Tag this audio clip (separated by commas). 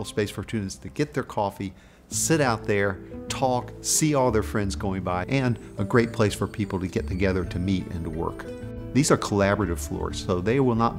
Speech, Music